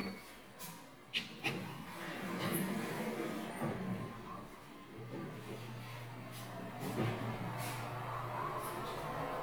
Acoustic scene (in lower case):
elevator